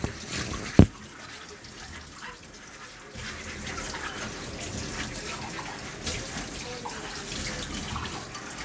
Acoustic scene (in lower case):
kitchen